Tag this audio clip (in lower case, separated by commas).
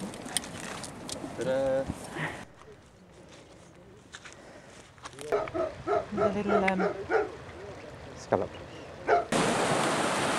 outside, rural or natural, animal, speech